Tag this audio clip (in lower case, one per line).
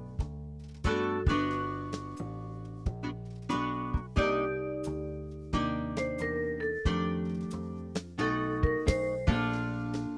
jazz
music